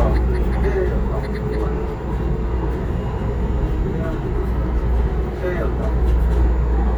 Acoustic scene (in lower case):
subway train